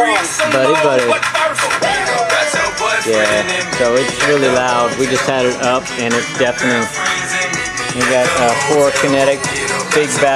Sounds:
Music, Speech

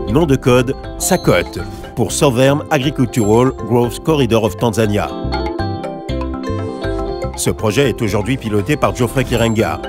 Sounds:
Music, Speech

